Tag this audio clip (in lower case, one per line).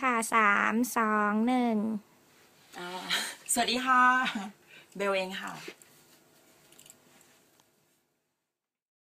speech